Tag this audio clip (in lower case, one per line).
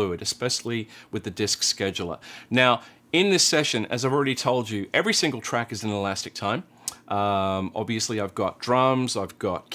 speech